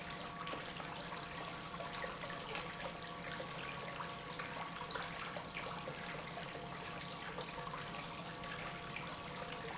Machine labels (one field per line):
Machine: pump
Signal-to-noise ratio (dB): 6 dB